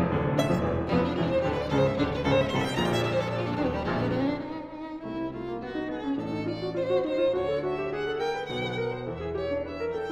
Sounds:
playing violin, fiddle, musical instrument, music

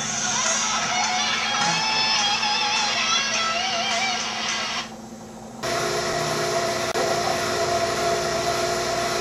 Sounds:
boiling, music

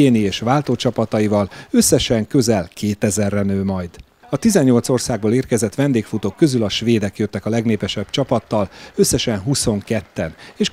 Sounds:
run, outside, urban or man-made, speech

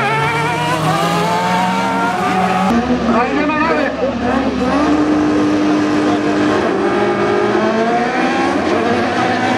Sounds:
race car, car, vehicle

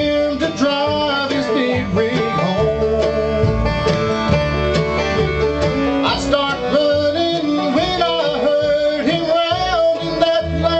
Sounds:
musical instrument, plucked string instrument, music, guitar

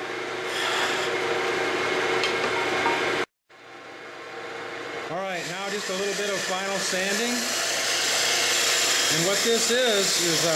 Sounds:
speech, tools

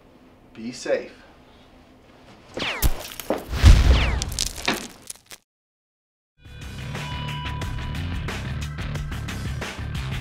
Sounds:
speech, inside a small room, music

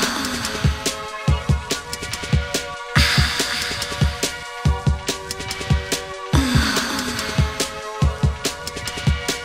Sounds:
techno, music

